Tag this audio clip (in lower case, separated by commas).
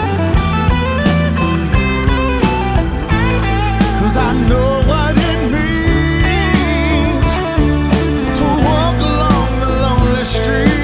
independent music